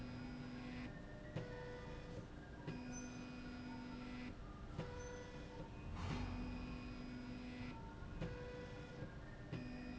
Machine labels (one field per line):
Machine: slide rail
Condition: normal